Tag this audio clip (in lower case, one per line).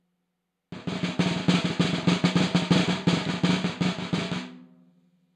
musical instrument
music
snare drum
drum
percussion